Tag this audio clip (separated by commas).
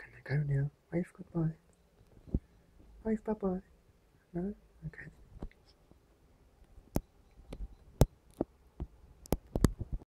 Speech